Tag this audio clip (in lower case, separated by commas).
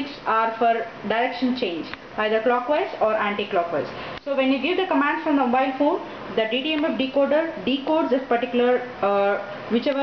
speech